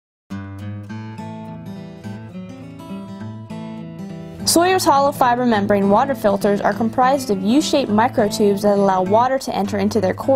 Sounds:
music
speech

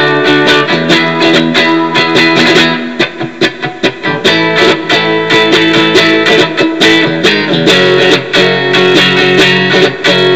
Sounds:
guitar
music
strum
plucked string instrument
musical instrument

